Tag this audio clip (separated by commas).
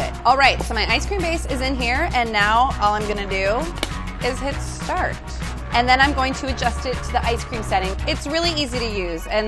ice cream van